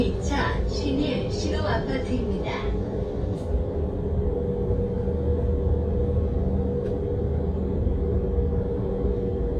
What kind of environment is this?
bus